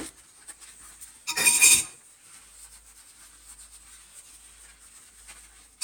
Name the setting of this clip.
kitchen